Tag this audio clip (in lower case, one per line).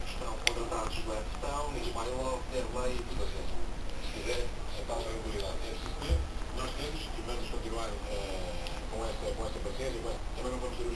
speech